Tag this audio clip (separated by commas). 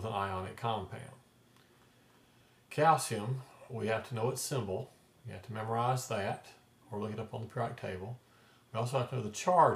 Speech